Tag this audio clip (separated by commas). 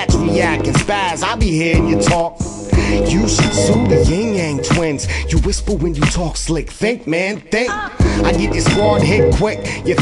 Rapping, Music